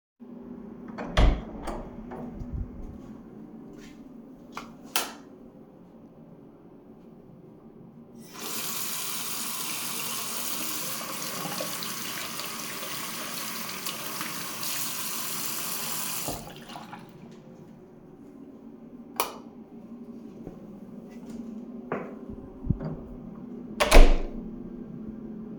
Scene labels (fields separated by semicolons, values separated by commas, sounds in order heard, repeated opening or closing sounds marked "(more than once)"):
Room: lavatory; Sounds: door (more than once), footsteps, light switch, running water